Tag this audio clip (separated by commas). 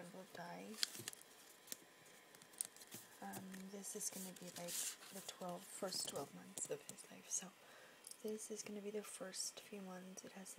inside a small room, Speech